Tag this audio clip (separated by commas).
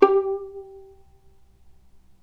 Music, Bowed string instrument, Musical instrument